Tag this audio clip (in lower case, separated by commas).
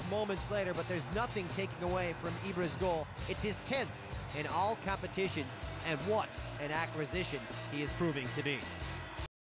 music, speech